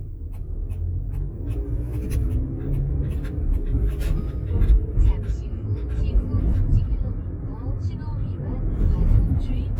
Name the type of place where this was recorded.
car